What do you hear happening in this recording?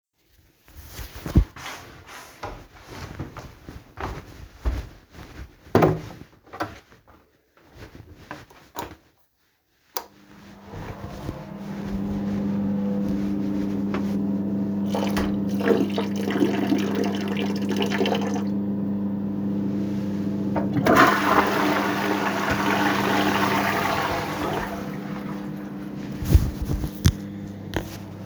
I walked towards the bathroom, opened the door, switched on the light and the ventilation, peed and flushed.